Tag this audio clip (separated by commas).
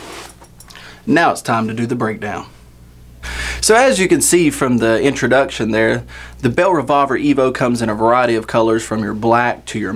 Speech